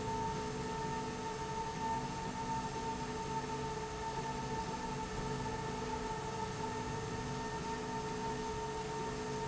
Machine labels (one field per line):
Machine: slide rail